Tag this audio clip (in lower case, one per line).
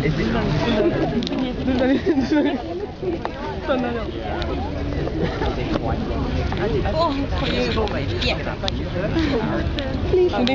speech